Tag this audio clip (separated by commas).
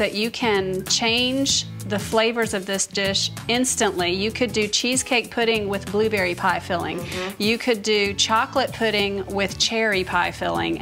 Music, Speech